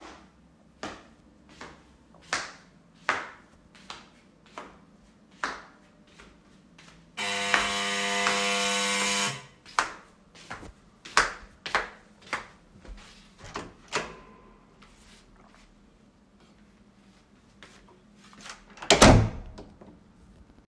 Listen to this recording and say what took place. The doorbell rang while I was across the living room. I walked toward the front door with footsteps clearly audible. I opened the door briefly and then closed it without any interaction.